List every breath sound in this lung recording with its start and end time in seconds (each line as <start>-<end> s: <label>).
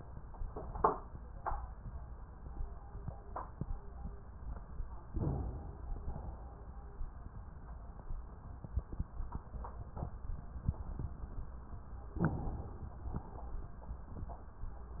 5.16-6.04 s: inhalation
6.04-6.66 s: exhalation
12.20-13.11 s: inhalation
13.11-13.68 s: exhalation